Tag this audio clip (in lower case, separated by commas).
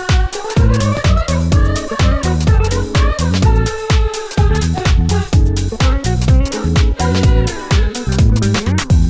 disco, jazz, music